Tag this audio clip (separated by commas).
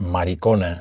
Speech, Male speech, Human voice